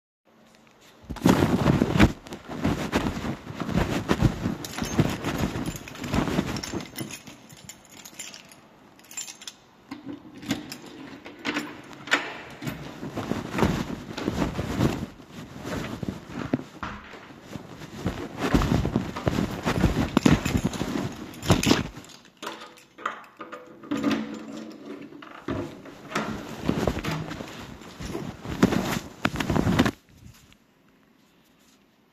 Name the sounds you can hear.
footsteps, keys, door